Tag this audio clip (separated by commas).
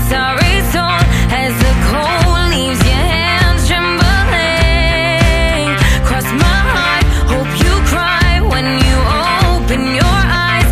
Music